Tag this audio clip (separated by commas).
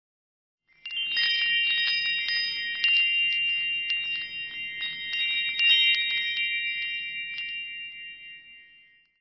Chime, Wind chime